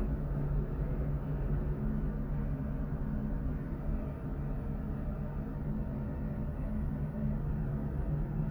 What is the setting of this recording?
elevator